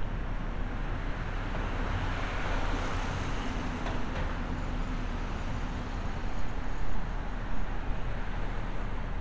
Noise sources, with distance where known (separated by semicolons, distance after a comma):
medium-sounding engine, near